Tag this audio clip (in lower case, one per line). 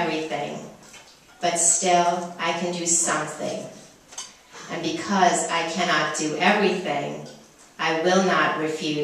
speech